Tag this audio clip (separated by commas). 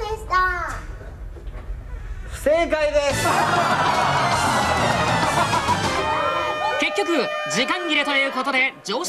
Speech, Music